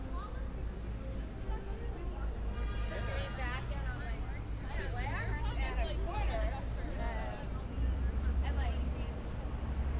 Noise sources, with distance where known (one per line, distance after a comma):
car horn
person or small group talking, near